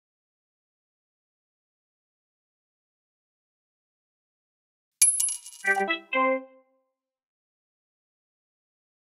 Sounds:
music

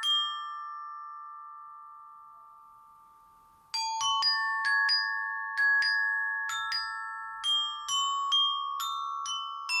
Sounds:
playing glockenspiel

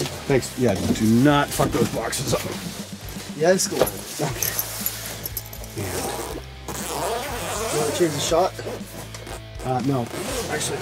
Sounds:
guitar
plucked string instrument
musical instrument
music

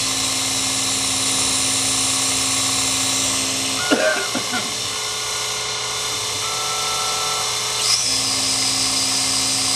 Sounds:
tools

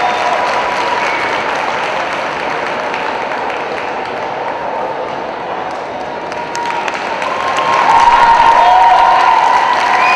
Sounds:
speech

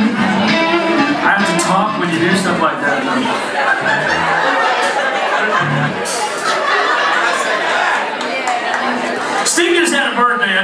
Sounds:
speech
music

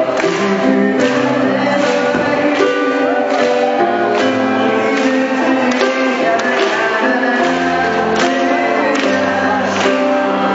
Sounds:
music

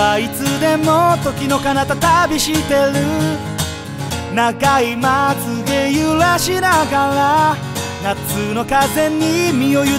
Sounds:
music

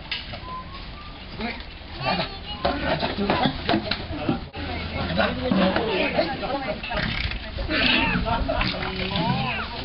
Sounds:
speech
wild animals
animal

